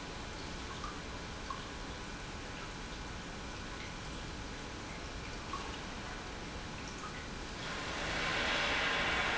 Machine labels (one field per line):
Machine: pump